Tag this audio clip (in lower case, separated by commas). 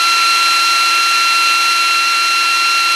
tools, drill, power tool